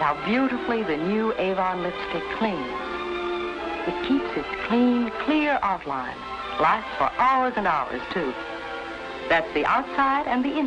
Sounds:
music
speech

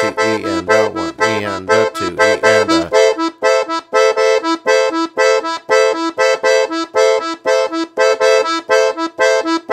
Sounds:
playing accordion

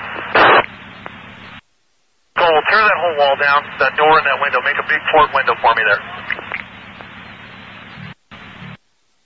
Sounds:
police radio chatter

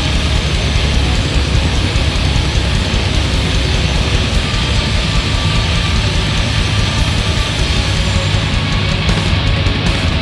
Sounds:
heavy metal
drum
music
musical instrument
drum kit

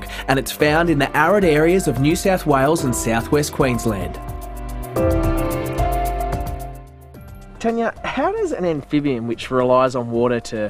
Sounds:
music
speech

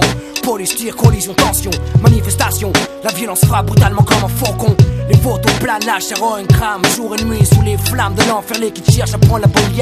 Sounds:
music
sampler

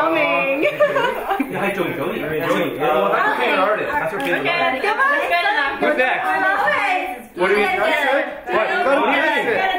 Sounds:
speech

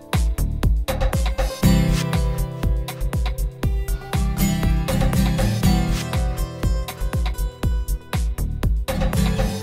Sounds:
music
sampler

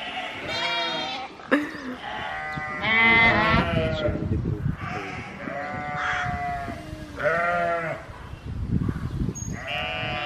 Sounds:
sheep bleating

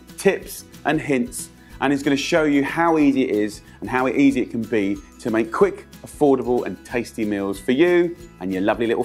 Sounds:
speech
music

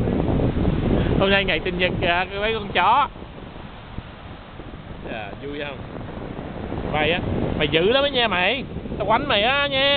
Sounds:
speech

